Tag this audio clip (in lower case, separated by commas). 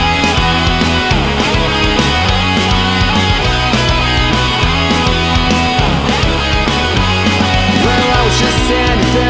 music, disco